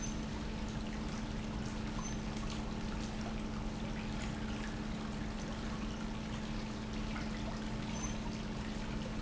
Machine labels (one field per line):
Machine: pump